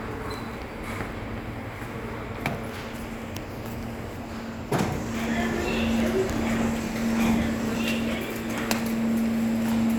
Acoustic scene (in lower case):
subway station